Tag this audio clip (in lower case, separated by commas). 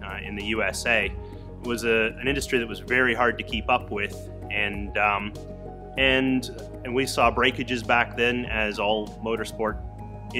speech, music